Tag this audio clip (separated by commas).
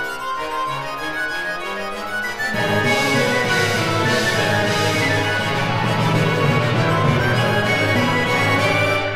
Accordion, Music